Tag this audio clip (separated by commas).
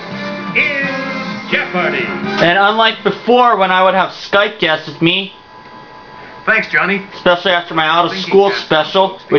Music, Speech